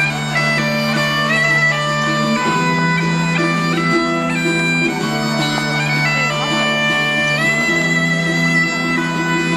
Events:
[0.00, 9.55] music
[6.26, 6.64] female speech

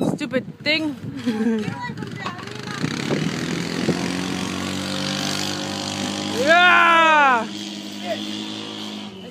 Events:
[0.00, 1.16] wind noise (microphone)
[0.00, 9.30] wind
[0.13, 0.93] female speech
[1.12, 1.65] laughter
[1.63, 9.30] motor vehicle (road)
[1.69, 2.87] child speech
[2.68, 3.39] wind noise (microphone)
[6.31, 7.47] shout
[7.96, 8.21] male speech
[9.13, 9.30] male speech

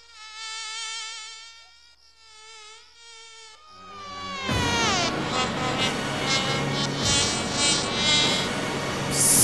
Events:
[0.00, 8.43] buzz
[1.40, 2.29] cricket
[3.67, 9.43] music
[9.09, 9.43] human sounds

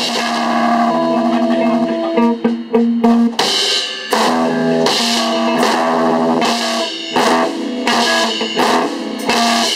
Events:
[0.00, 9.75] music

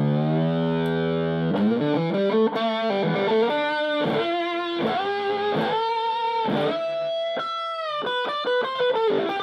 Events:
[0.00, 9.42] effects unit
[0.00, 9.42] music

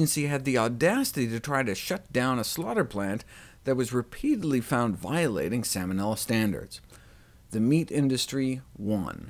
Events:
[0.00, 3.20] male speech
[0.01, 9.25] background noise
[3.23, 3.55] breathing
[3.56, 6.79] male speech
[6.79, 6.98] human sounds
[6.95, 7.39] breathing
[7.50, 9.25] male speech

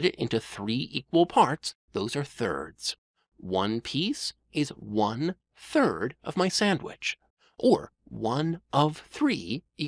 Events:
[0.00, 1.69] male speech
[1.84, 2.94] male speech
[3.12, 3.32] breathing
[3.32, 4.32] male speech
[4.50, 5.33] male speech
[5.47, 7.14] male speech
[7.17, 7.57] breathing
[7.54, 7.93] male speech
[8.06, 9.57] male speech
[9.76, 9.85] male speech

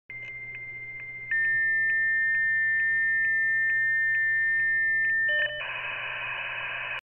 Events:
[0.07, 6.97] radio
[0.18, 0.31] generic impact sounds
[0.49, 0.58] tick
[0.94, 0.99] tick
[1.26, 1.29] tick
[1.40, 1.46] tick
[1.86, 1.90] tick
[2.29, 2.35] tick
[2.74, 2.82] tick
[3.20, 3.27] tick
[3.63, 3.73] tick
[4.08, 4.17] tick
[4.55, 4.63] tick
[5.03, 5.10] tick
[5.25, 5.60] bleep
[5.58, 6.97] noise

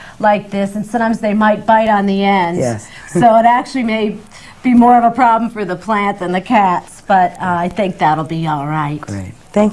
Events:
[0.00, 9.72] conversation
[0.00, 9.72] mechanisms
[0.15, 2.52] female speech
[2.50, 2.86] male speech
[2.83, 3.12] breathing
[3.00, 3.58] giggle
[3.10, 4.19] female speech
[4.23, 4.59] breathing
[4.60, 6.88] female speech
[7.08, 8.92] female speech
[7.37, 7.58] male speech
[9.00, 9.37] male speech

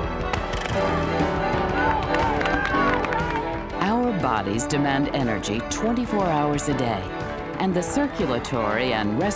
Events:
[0.00, 9.35] music
[0.30, 0.72] generic impact sounds
[1.64, 1.69] clapping
[1.73, 2.96] human voice
[1.98, 2.18] clapping
[2.35, 2.51] clapping
[2.62, 2.77] clapping
[2.87, 3.14] clapping
[2.98, 3.58] woman speaking
[3.27, 3.37] clapping
[3.49, 3.61] clapping
[3.72, 6.96] woman speaking
[7.58, 9.35] woman speaking

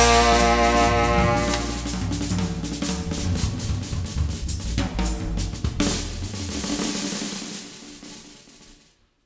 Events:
[0.00, 9.00] music
[0.00, 9.25] background noise
[1.45, 1.56] tick

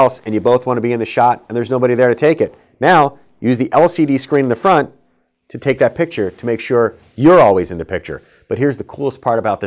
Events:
[0.00, 1.32] man speaking
[0.00, 9.65] background noise
[1.47, 2.48] man speaking
[2.75, 3.08] man speaking
[3.06, 3.16] clicking
[3.38, 4.87] man speaking
[4.29, 4.59] camera
[5.46, 6.88] man speaking
[6.00, 6.66] surface contact
[7.15, 8.15] man speaking
[8.19, 8.44] breathing
[8.48, 9.65] man speaking

